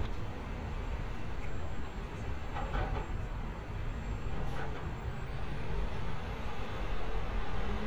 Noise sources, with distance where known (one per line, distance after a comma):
engine of unclear size, far